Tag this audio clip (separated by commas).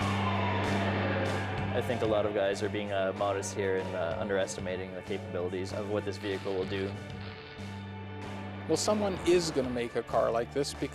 Car passing by, Car, Speech, Vehicle, Motor vehicle (road), Music